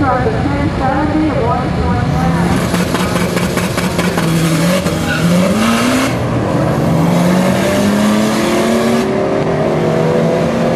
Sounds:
auto racing
vehicle
car

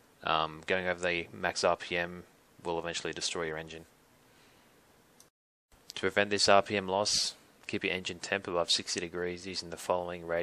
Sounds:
speech

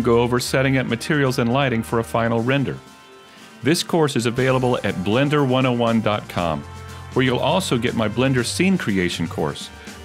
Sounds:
music
speech

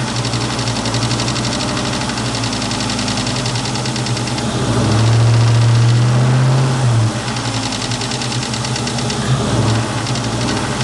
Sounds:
accelerating
idling
vibration
engine
vehicle
medium engine (mid frequency)

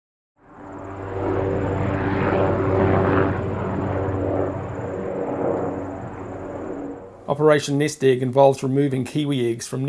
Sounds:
vehicle
speech

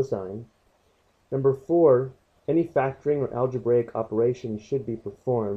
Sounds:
speech

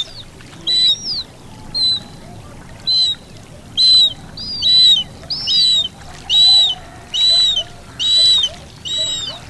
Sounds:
bird squawking

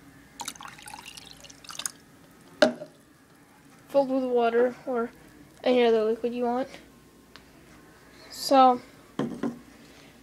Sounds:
speech

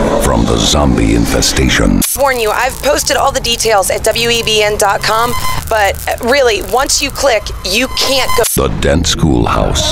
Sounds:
speech
radio

